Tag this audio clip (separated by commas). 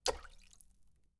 Liquid, Splash